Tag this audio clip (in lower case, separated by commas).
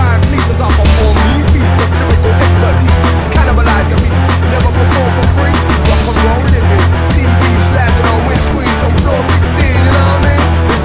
plucked string instrument, strum, music, sound effect, acoustic guitar, musical instrument